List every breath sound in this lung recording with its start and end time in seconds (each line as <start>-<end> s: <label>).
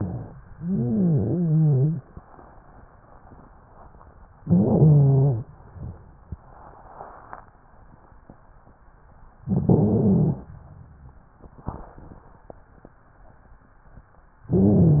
0.48-2.07 s: stridor
4.42-5.46 s: inhalation
4.42-5.46 s: stridor
9.44-10.48 s: inhalation
9.44-10.48 s: stridor
14.49-15.00 s: inhalation
14.49-15.00 s: stridor